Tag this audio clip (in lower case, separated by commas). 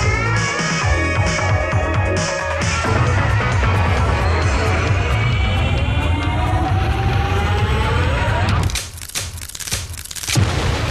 jazz, dance music, happy music, theme music, new-age music, music